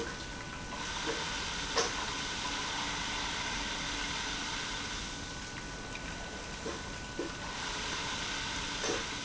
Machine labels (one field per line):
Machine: pump